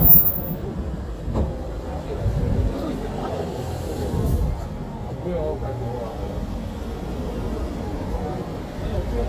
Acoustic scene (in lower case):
street